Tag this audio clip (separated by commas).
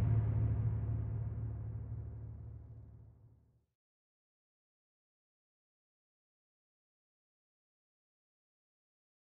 Sound effect